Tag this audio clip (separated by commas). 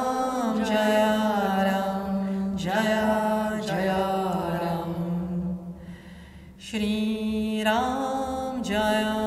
Vocal music, Mantra